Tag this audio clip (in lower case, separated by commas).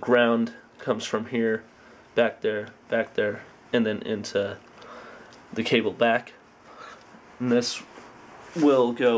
speech